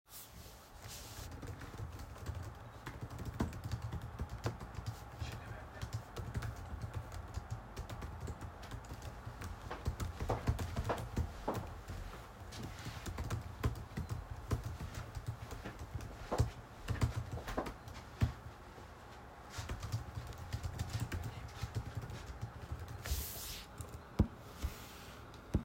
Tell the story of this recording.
I was sitting at my desk typing on my laptop keyboard. While I was typing, my roommate walked across the room.